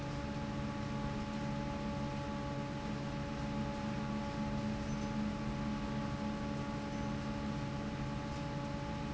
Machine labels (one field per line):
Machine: fan